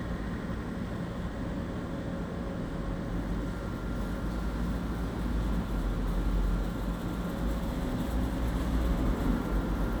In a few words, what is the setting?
residential area